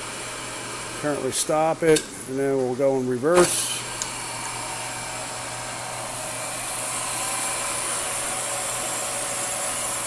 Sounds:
Tools, Power tool, Speech

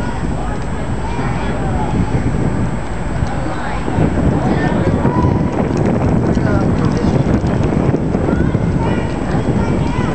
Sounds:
Run, Speech

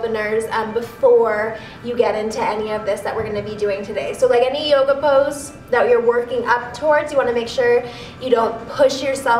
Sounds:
Speech, Music

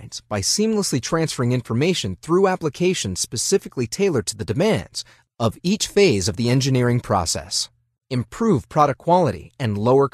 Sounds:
Speech synthesizer

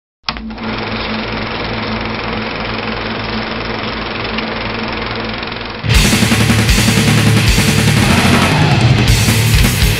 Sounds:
Music

